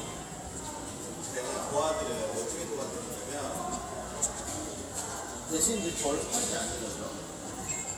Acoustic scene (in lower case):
subway station